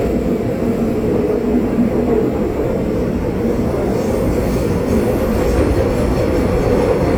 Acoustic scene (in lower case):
subway train